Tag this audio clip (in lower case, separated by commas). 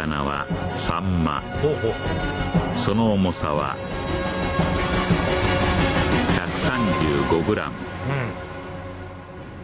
speech, music